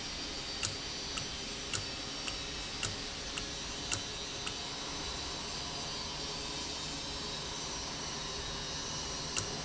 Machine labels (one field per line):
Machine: valve